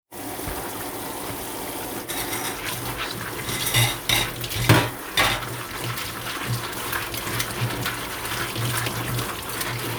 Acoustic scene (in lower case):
kitchen